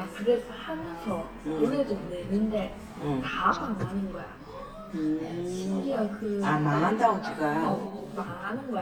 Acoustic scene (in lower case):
crowded indoor space